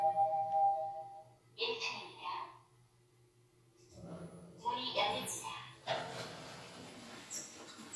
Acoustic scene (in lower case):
elevator